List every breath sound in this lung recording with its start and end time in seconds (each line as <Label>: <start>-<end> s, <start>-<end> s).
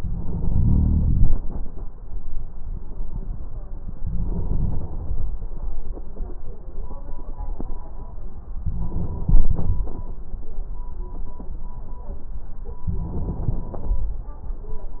Inhalation: 0.00-1.41 s, 4.03-5.29 s, 8.54-9.80 s, 12.89-14.16 s